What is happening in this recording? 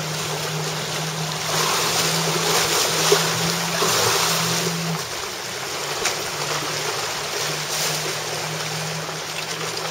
Water rushes by while birds chirp